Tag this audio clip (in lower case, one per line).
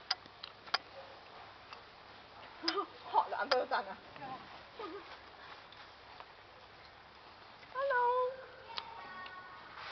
speech